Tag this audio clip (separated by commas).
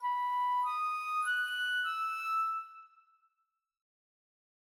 Music, woodwind instrument, Musical instrument